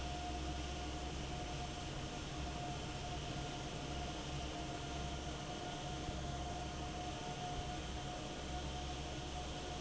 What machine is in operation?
fan